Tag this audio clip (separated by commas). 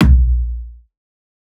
Percussion, Drum, Music, Bass drum, Musical instrument